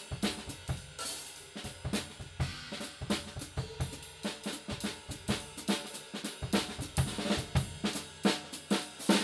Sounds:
hi-hat
bass drum
drum kit
musical instrument
drum
music
snare drum
cymbal

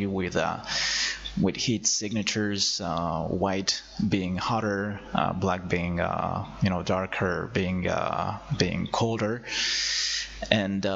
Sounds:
speech

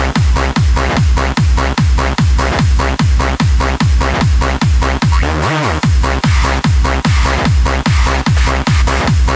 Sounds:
music

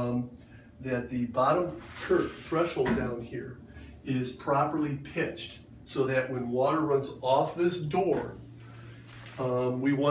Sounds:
speech

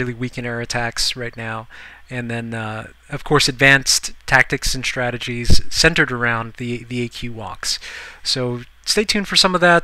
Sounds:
speech

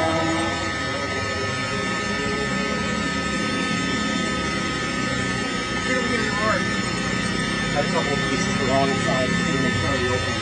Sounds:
speech

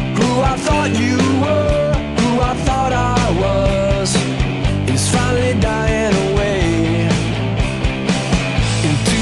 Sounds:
grunge
music

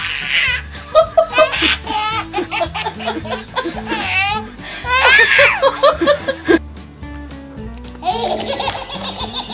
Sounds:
baby laughter

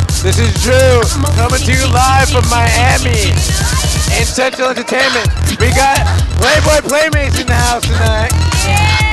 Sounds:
speech
music

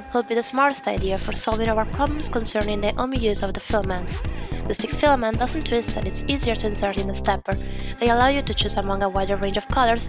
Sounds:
speech
music

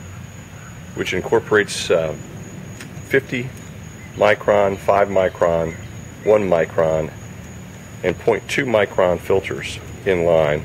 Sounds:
speech

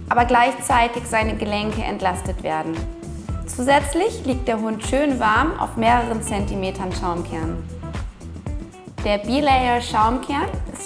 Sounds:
speech
music

